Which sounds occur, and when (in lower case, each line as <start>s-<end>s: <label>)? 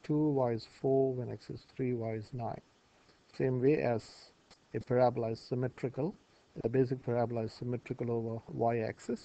0.0s-2.6s: man speaking
0.0s-9.2s: mechanisms
2.9s-3.3s: breathing
3.1s-3.1s: clicking
3.3s-4.4s: man speaking
4.7s-6.1s: man speaking
6.1s-6.6s: breathing
6.6s-9.2s: man speaking